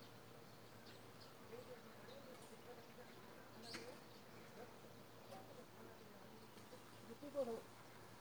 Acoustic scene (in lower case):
park